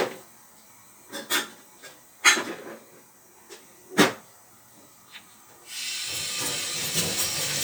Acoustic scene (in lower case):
kitchen